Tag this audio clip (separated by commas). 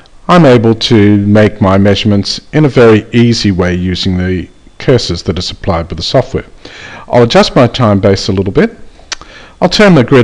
Speech